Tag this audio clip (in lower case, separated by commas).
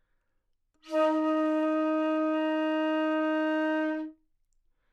musical instrument, music, wind instrument